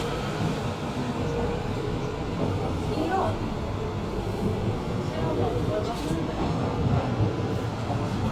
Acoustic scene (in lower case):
subway train